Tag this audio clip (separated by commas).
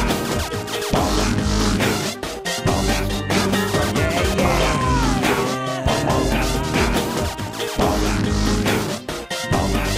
Music